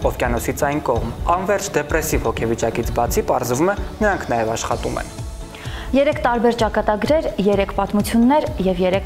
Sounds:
Speech, Music

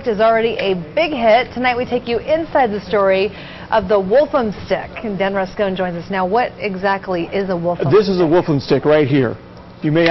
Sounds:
Speech

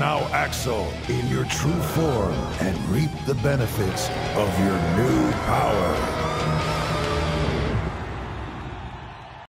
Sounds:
Strum, Acoustic guitar, Bass guitar, Musical instrument, Guitar, Plucked string instrument, Music, Speech, Electric guitar

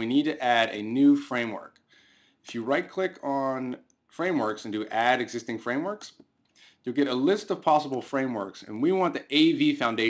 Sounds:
Speech

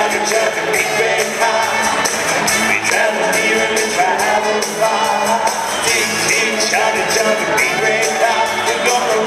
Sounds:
Music

